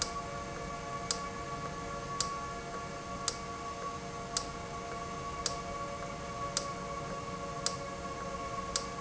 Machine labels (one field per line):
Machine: valve